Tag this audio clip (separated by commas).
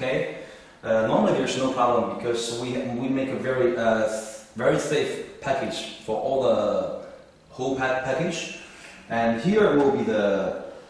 Speech